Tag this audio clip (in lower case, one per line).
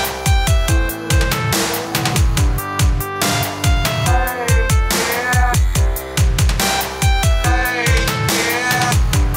music
dubstep
electronic music